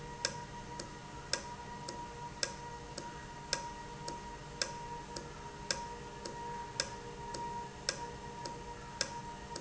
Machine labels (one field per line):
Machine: valve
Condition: normal